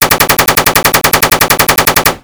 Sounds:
explosion, gunshot

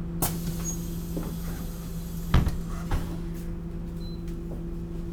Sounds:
motor vehicle (road), engine, vehicle, bus

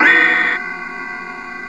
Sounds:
musical instrument, keyboard (musical), music

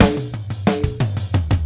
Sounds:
drum kit, music, musical instrument, percussion

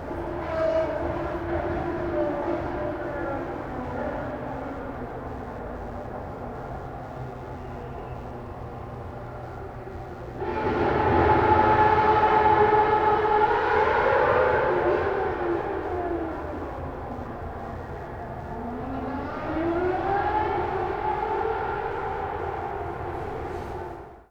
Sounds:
auto racing, vehicle, motor vehicle (road), car

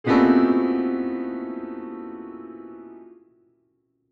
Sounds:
keyboard (musical), piano, music, musical instrument

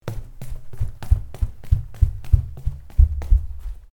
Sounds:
run

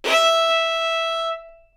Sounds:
music, bowed string instrument, musical instrument

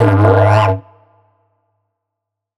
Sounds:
musical instrument, music

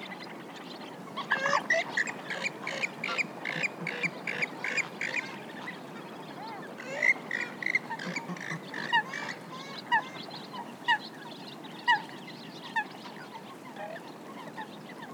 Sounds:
bird, chirp, animal, wild animals, bird vocalization

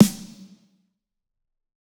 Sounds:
musical instrument, snare drum, drum, music, percussion

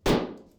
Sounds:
home sounds, dishes, pots and pans

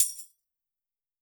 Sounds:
tambourine, music, musical instrument, percussion

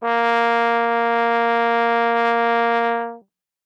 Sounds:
brass instrument, music, musical instrument

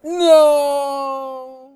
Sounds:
speech, human voice, man speaking

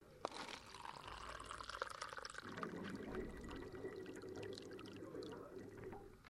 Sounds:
home sounds, sink (filling or washing)

